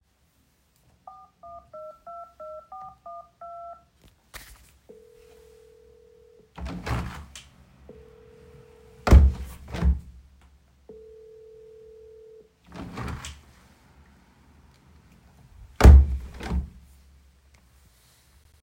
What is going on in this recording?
I answered a phone call while opening and closing the kitchen window. Both the ringing and the window sounds are clearly audible.